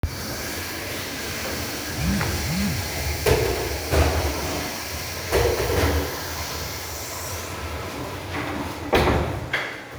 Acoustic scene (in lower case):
restroom